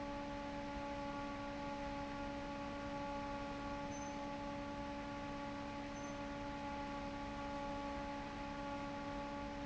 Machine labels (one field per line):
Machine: fan